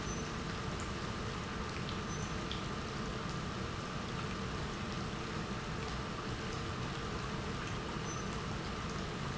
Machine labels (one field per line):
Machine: pump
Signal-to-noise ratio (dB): -6 dB